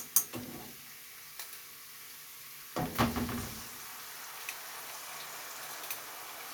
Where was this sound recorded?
in a kitchen